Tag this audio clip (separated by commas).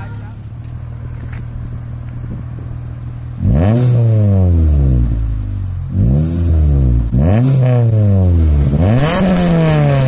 outside, rural or natural, Car, Speech, Vehicle